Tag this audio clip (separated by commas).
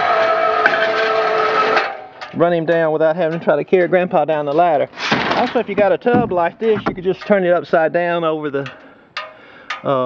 outside, rural or natural, Speech